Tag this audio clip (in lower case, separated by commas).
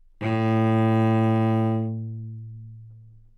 music, bowed string instrument, musical instrument